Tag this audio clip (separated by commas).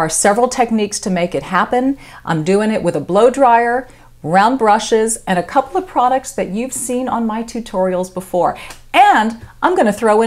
Speech